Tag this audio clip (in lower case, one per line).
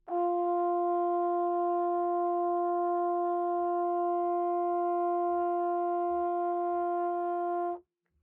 musical instrument
brass instrument
music